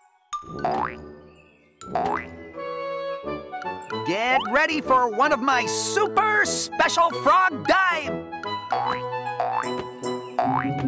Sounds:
music for children

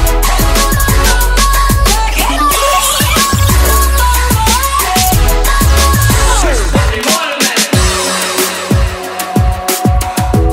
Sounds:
drum and bass
music

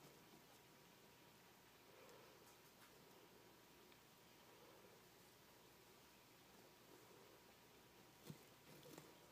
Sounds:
silence

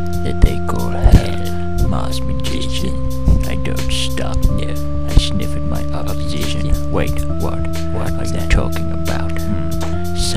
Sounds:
music
speech

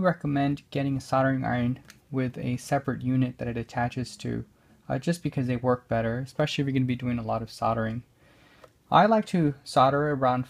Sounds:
speech

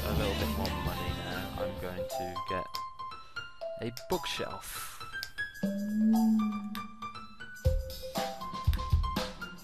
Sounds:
music
speech
vibraphone

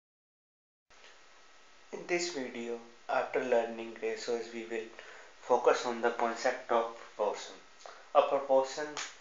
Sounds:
speech

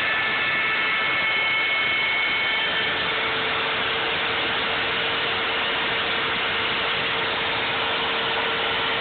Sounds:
power tool

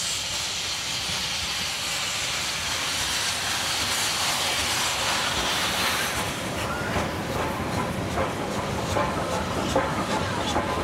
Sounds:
hiss
steam
clickety-clack
rail transport
train wagon
train

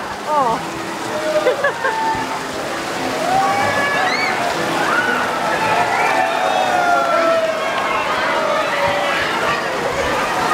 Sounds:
rain on surface

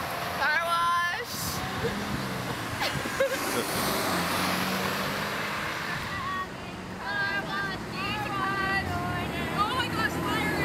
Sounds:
car passing by

